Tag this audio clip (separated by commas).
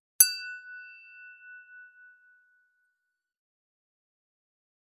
clink, Glass